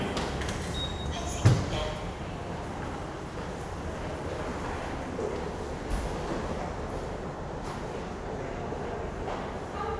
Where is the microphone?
in a subway station